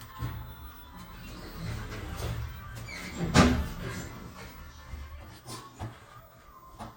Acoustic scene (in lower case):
elevator